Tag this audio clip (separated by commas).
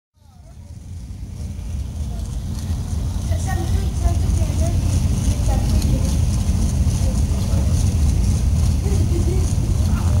Car, Speech, Vehicle